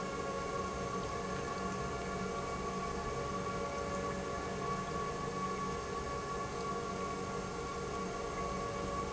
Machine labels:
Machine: pump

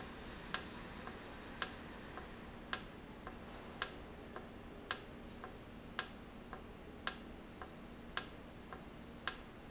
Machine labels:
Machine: valve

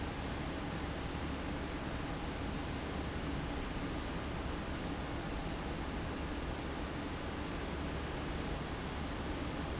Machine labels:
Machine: fan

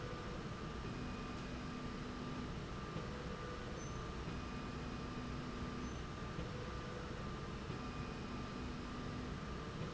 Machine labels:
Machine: slide rail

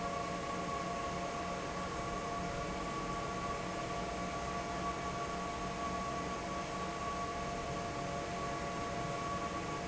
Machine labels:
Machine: fan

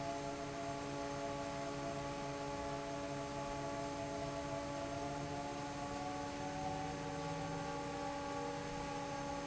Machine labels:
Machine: fan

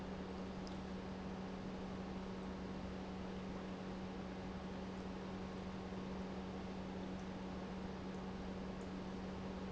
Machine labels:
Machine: pump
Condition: normal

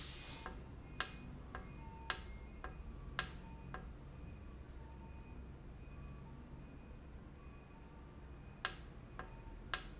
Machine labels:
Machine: valve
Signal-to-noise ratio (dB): 6 dB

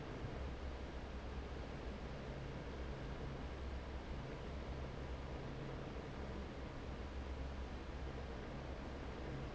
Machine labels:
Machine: fan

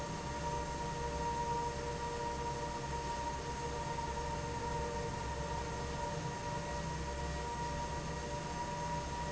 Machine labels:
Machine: fan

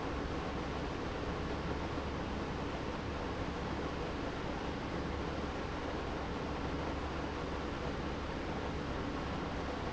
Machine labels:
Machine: pump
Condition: abnormal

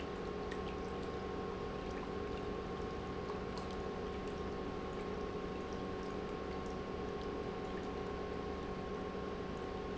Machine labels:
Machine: pump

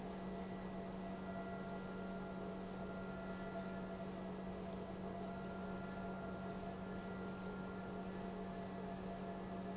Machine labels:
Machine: pump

